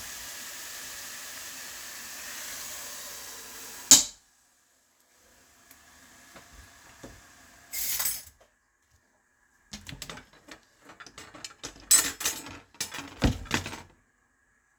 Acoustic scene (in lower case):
kitchen